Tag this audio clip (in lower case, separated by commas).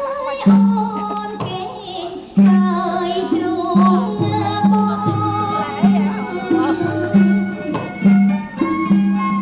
music, speech, traditional music, rhythm and blues